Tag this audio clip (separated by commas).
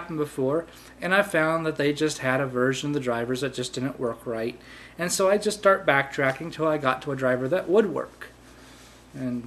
inside a small room, Speech